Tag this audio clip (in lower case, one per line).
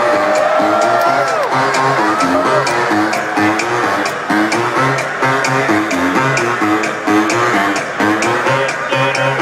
jazz
speech
music
pop music